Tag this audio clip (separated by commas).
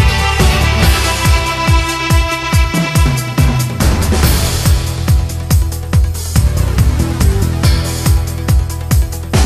Music, Video game music, Soundtrack music